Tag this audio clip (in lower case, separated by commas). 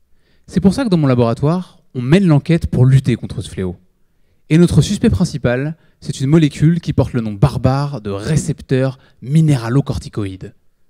speech